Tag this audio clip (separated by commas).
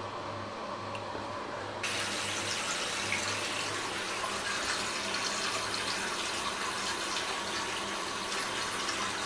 Water, faucet, Sink (filling or washing)